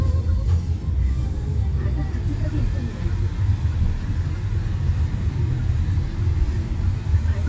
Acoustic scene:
car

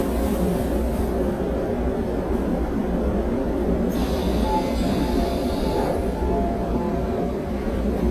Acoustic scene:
subway train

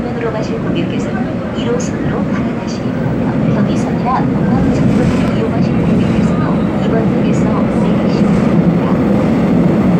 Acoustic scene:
subway train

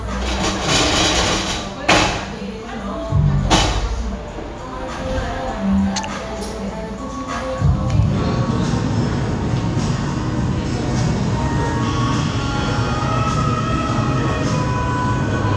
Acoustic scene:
cafe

